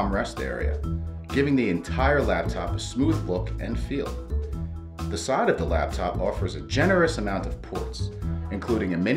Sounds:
speech, music

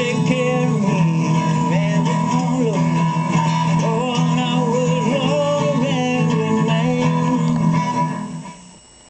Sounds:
male singing, music

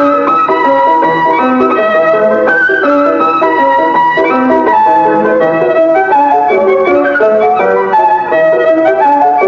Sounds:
music, musical instrument

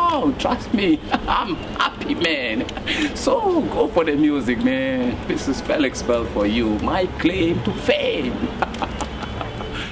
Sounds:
speech

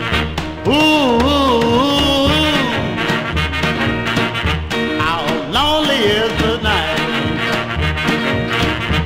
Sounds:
music, musical instrument, guitar

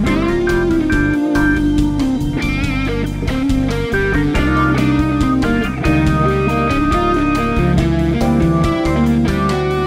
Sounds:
strum, music, plucked string instrument, musical instrument, acoustic guitar, guitar

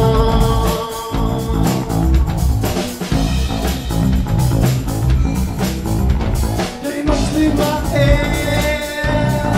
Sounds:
music

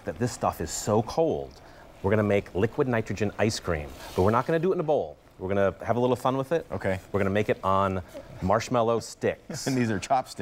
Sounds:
speech

